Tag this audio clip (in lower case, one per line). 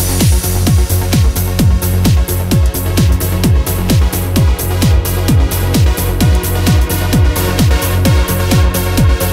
music